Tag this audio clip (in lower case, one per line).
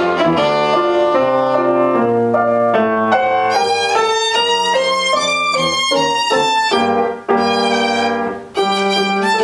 music
violin
musical instrument